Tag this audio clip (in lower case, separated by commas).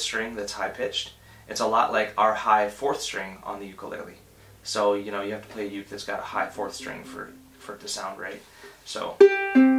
ukulele, music, inside a small room, speech